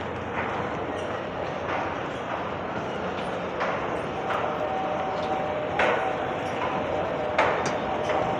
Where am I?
in a subway station